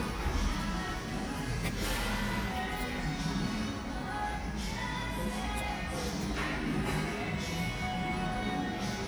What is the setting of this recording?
cafe